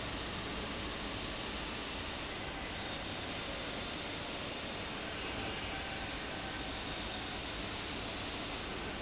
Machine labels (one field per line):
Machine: fan